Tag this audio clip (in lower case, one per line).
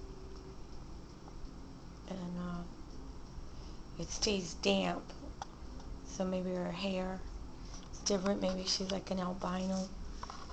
speech